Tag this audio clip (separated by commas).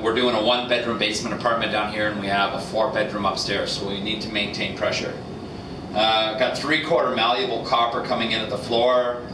Speech